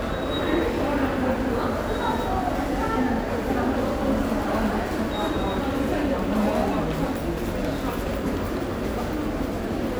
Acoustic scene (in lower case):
subway station